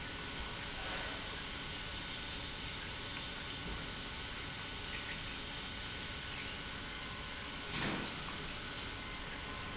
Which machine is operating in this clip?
pump